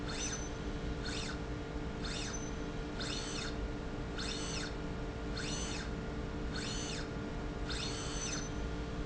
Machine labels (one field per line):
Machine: slide rail